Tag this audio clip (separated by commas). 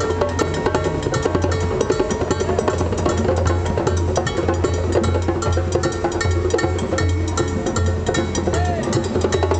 Wood block, Music